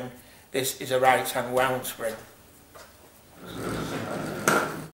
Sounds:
Speech

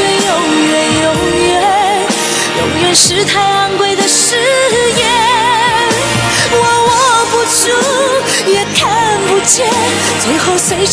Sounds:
Music

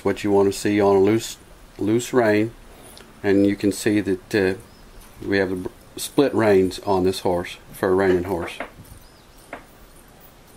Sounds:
Clip-clop, Speech, Animal

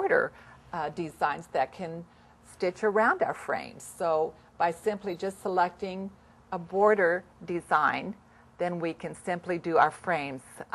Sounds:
Speech

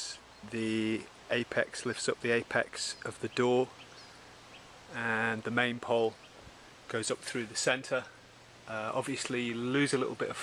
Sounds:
Speech

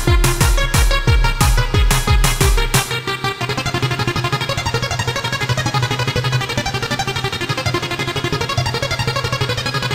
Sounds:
Music, Techno

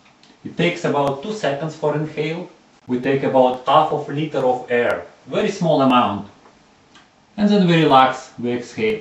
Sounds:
Speech

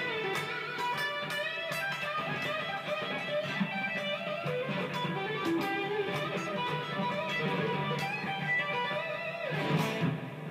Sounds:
Musical instrument, Guitar, Reverberation, Music

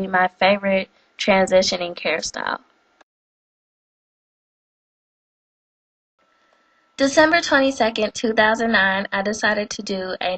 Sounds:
Speech

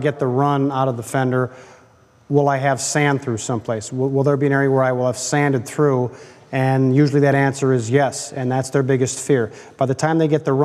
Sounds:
Speech

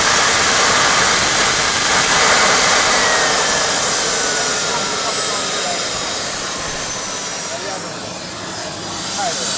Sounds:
Speech, Aircraft

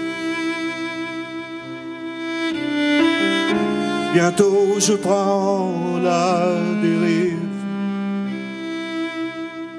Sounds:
Singing, Bowed string instrument, Music

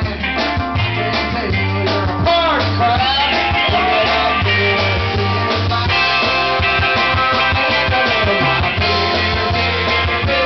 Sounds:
Music, Male singing

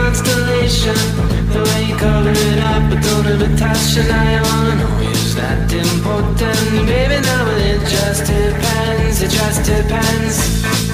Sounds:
Speech, Pop music

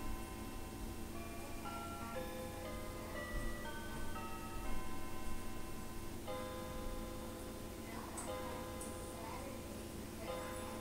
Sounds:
Music, Speech

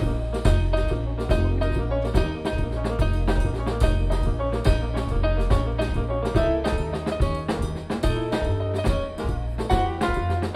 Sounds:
Drum, Music, Jazz, Drum kit, Percussion, Musical instrument

